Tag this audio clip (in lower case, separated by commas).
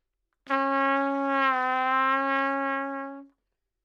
musical instrument, brass instrument, trumpet, music